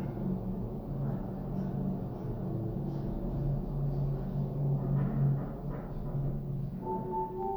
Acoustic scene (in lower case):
elevator